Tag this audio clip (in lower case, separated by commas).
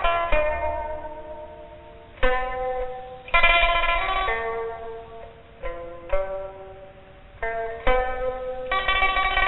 music